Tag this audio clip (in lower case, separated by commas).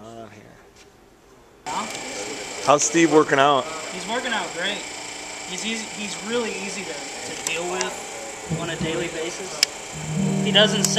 speech